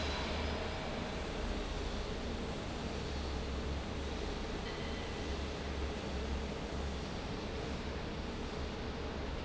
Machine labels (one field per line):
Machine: fan